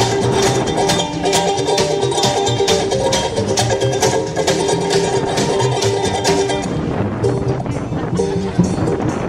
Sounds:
Music, Speech

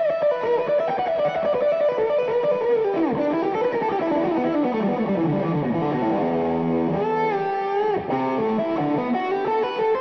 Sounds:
Plucked string instrument, Guitar, Progressive rock, Musical instrument, Music

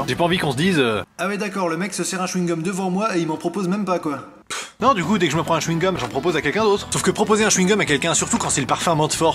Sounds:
Speech, Music

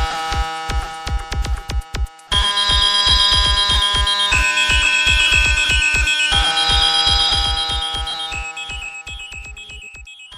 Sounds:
Buzzer, Music

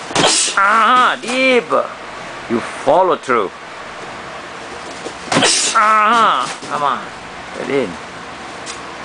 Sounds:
Speech

